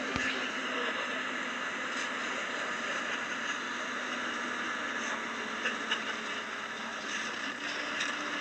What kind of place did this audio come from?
bus